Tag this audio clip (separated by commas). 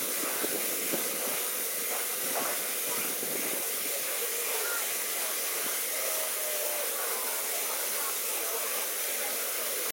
Hiss, Steam